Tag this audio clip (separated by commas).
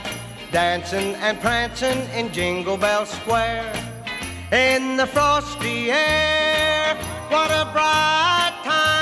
Jingle bell, Music